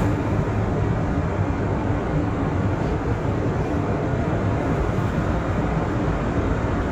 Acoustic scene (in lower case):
subway train